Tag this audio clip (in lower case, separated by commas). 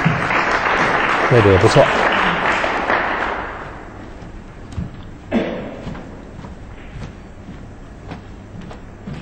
speech